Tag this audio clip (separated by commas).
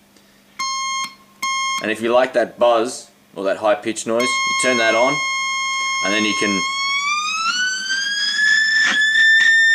Effects unit, inside a small room, Speech